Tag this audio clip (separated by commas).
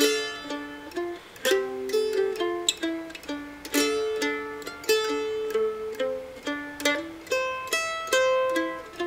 playing mandolin